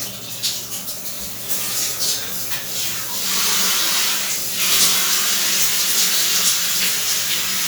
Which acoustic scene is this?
restroom